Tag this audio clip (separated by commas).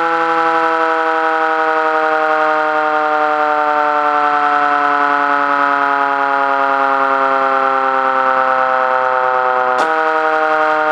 Siren